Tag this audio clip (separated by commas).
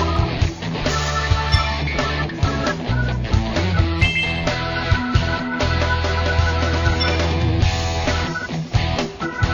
Music